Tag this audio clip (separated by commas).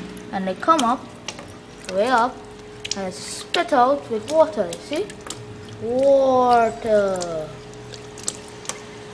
Water, Pump (liquid)